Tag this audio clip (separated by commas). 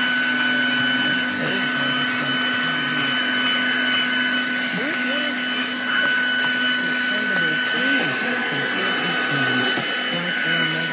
Vacuum cleaner